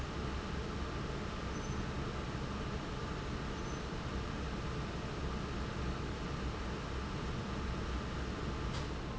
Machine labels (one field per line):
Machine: fan